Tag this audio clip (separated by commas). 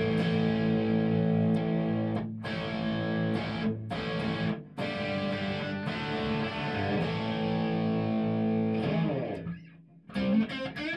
Music